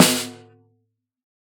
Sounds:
music, percussion, drum, musical instrument, snare drum

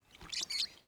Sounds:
animal, bird, wild animals

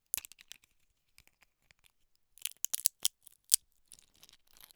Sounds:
crack

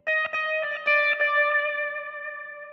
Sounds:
music, musical instrument, guitar, plucked string instrument

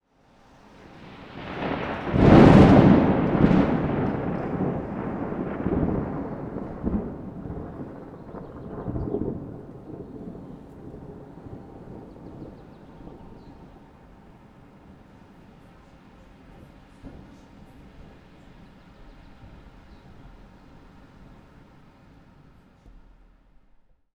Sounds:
thunderstorm, thunder

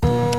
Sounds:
mechanisms, printer

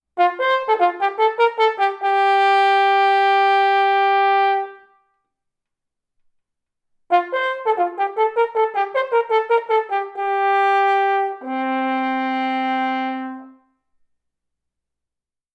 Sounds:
musical instrument, brass instrument, music

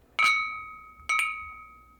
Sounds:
glass, clink

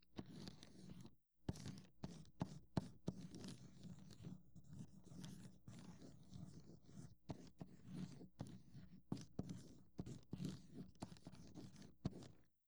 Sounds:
writing, home sounds

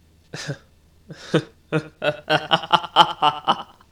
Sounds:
laughter, human voice

